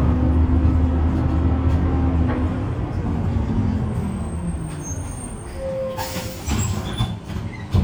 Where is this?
on a bus